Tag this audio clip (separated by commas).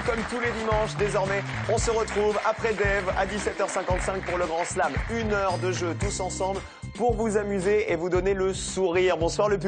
Music, Speech